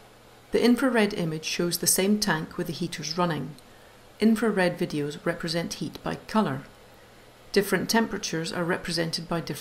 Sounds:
speech

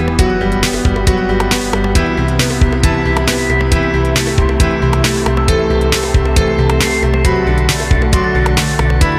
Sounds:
music

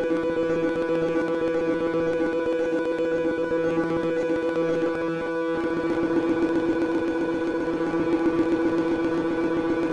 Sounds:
sound effect

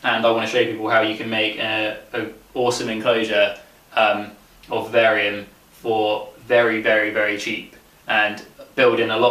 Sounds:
inside a small room
speech

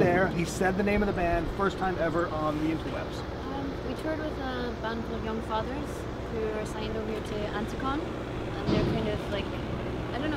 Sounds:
vehicle
speech

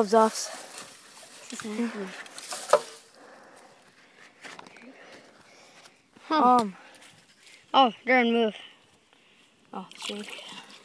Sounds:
outside, rural or natural
speech

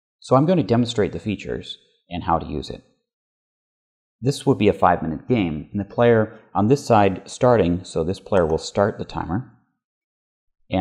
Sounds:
speech

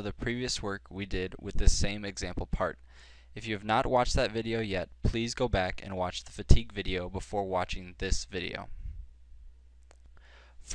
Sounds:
speech

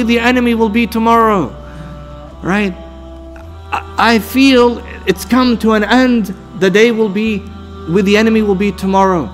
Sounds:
music
narration
male speech
speech

